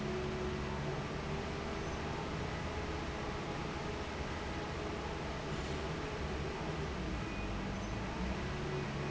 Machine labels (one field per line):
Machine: fan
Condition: normal